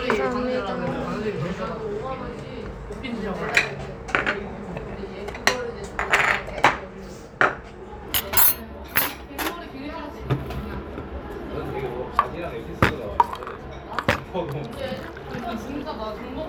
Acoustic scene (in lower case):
restaurant